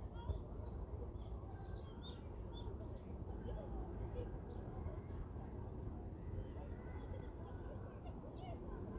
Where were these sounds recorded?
in a residential area